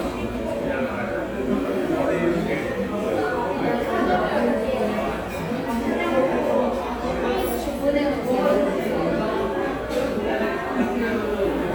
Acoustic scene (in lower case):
crowded indoor space